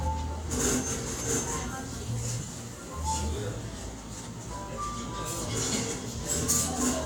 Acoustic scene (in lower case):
cafe